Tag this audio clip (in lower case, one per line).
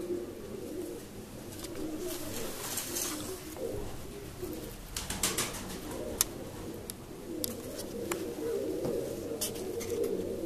dove
inside a small room
dove cooing
bird